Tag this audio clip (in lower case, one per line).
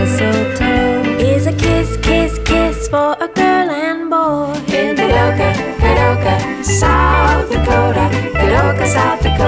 rhythm and blues
music